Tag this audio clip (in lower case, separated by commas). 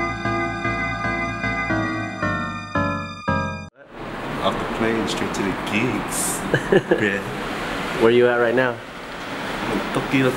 music, speech